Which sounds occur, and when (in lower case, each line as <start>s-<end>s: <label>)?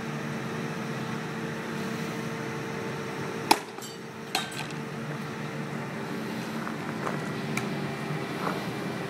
0.0s-9.0s: mechanisms
1.7s-2.1s: generic impact sounds
3.5s-3.6s: hammer
3.8s-4.0s: hammer
4.3s-4.7s: hammer
4.5s-4.7s: generic impact sounds
5.0s-5.1s: tick
6.2s-6.5s: breathing
6.6s-6.7s: tick
6.8s-6.9s: tick
7.0s-7.1s: tick
7.5s-7.6s: tick
8.4s-8.5s: footsteps